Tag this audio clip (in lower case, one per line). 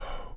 human voice
whispering